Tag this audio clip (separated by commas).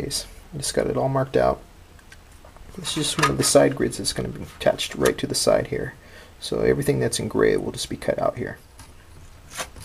Speech, inside a small room